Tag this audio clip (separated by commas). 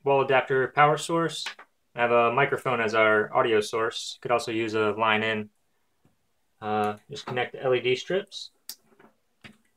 Speech